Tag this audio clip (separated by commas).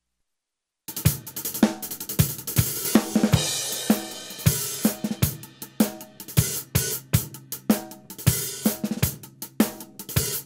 Drum kit, Drum, Musical instrument, Bass drum, Music